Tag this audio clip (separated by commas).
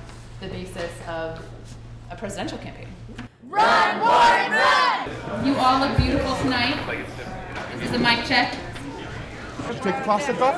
Speech